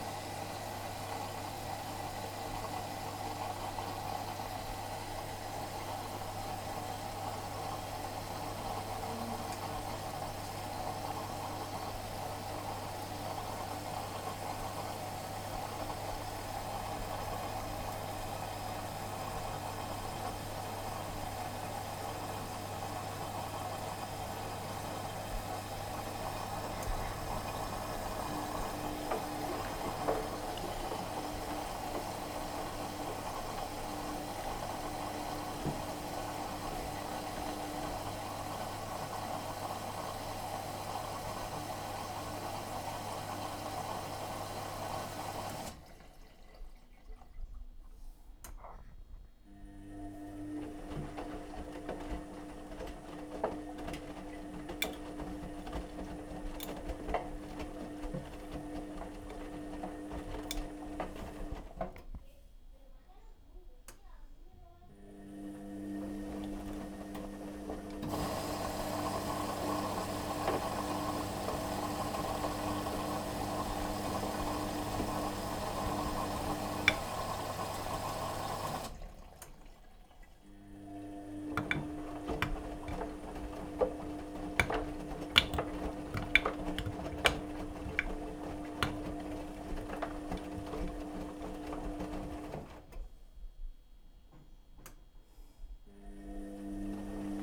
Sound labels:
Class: washing machine